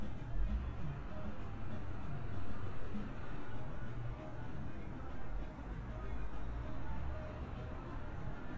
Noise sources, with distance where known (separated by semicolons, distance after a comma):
background noise